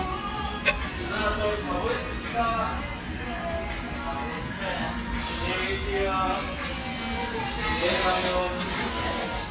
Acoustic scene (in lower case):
restaurant